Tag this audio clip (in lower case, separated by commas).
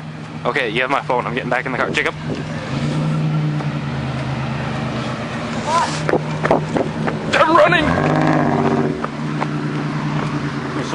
speech, outside, urban or man-made